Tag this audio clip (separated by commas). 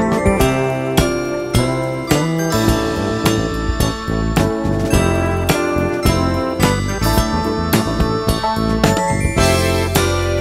Music